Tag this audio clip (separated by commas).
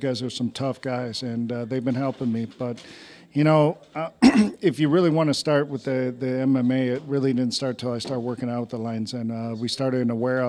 Speech